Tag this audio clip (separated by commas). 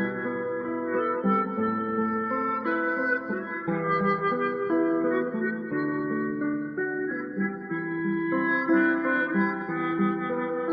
Guitar, Musical instrument, Music